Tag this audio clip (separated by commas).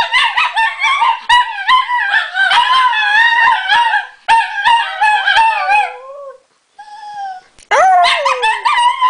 Dog, Animal, Bark, dog barking, pets